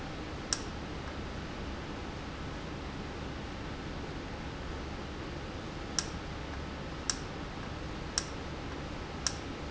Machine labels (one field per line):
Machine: valve